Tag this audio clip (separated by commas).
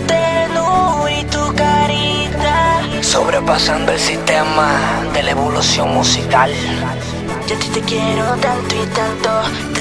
Music